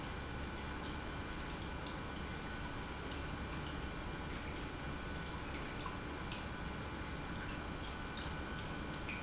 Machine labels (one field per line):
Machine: pump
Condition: normal